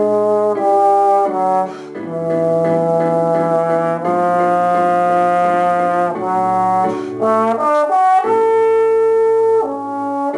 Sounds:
playing trombone, brass instrument, trombone, musical instrument, music

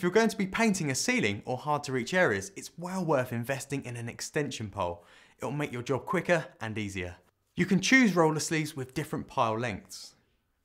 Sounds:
speech

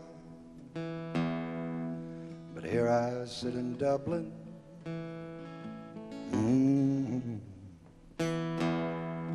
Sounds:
music, singing, electronic tuner

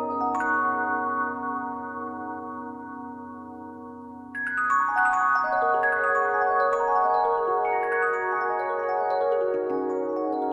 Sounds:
marimba, mallet percussion, glockenspiel

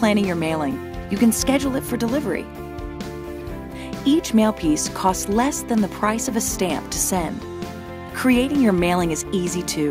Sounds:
music, speech

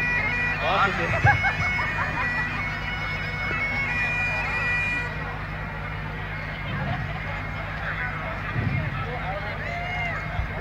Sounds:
music, speech

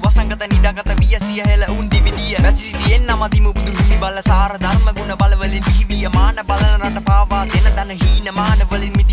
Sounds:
music

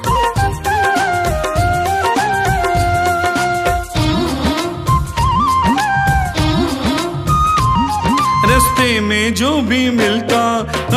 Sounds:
music of asia, music of bollywood, music

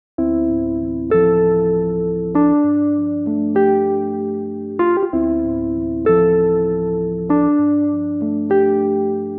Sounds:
music

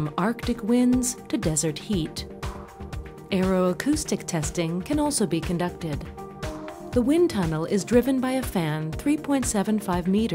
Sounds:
speech, music

